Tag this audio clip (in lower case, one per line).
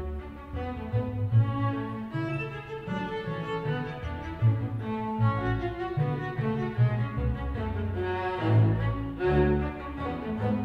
double bass